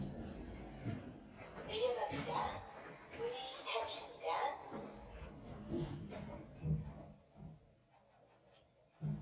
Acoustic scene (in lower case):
elevator